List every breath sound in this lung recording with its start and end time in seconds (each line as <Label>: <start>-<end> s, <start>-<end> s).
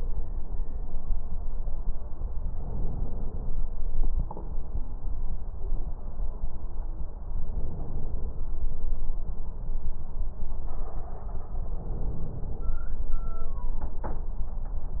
Inhalation: 2.46-3.62 s, 7.42-8.59 s, 11.74-12.80 s